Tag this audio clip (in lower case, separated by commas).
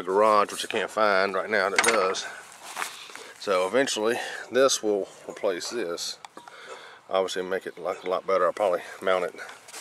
speech